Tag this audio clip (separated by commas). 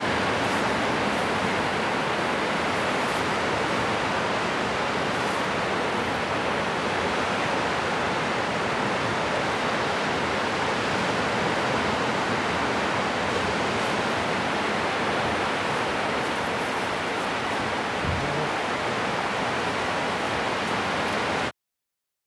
Water, surf, Ocean